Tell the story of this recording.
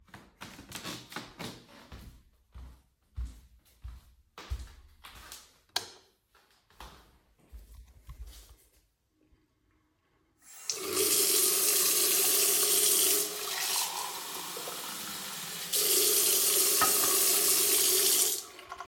I walked into the bathroom, turned on the light and got a glass of water.